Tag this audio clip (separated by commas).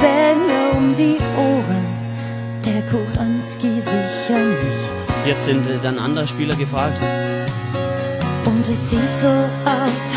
Music